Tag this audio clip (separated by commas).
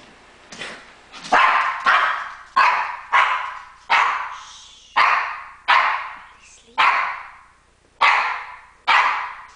Bow-wow, Animal, Domestic animals, Yip, Dog, Speech